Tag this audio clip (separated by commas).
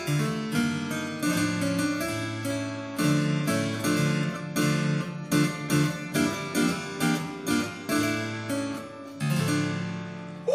playing harpsichord